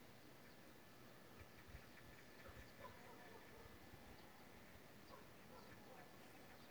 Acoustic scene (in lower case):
park